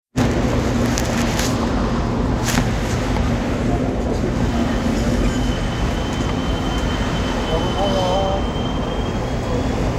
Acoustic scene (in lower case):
subway train